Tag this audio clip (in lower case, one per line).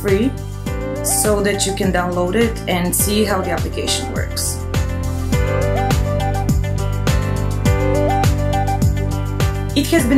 woman speaking
speech
music